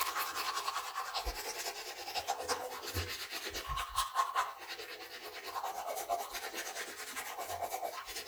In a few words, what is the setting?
restroom